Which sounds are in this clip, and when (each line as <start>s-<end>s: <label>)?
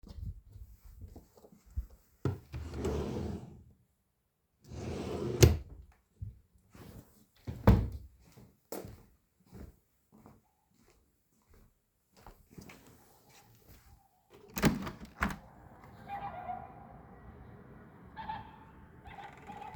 2.2s-3.5s: wardrobe or drawer
4.7s-5.7s: wardrobe or drawer
7.5s-7.9s: wardrobe or drawer
9.5s-13.0s: footsteps
14.5s-15.4s: window